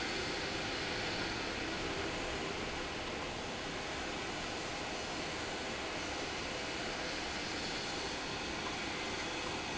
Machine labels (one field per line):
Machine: pump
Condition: abnormal